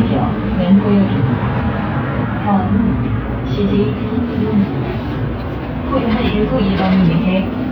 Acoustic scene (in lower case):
bus